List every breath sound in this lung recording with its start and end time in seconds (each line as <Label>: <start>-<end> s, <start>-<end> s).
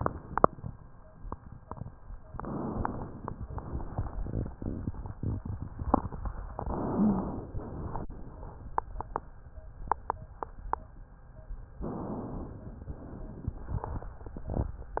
Inhalation: 2.30-3.38 s, 6.55-7.57 s, 11.82-12.88 s
Exhalation: 3.44-4.52 s, 12.88-13.87 s
Wheeze: 6.93-7.44 s